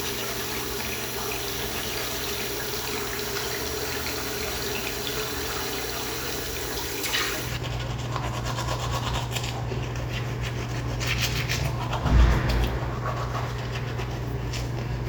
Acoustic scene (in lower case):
restroom